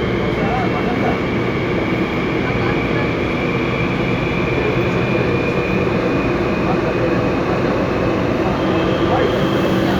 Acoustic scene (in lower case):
subway train